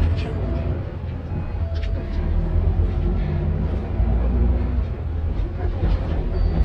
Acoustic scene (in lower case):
bus